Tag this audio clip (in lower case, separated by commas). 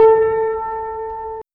music, piano, keyboard (musical), musical instrument